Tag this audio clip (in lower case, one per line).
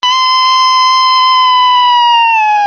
screaming
human voice